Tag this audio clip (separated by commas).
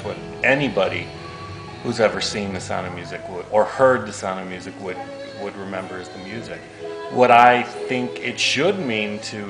Music, Speech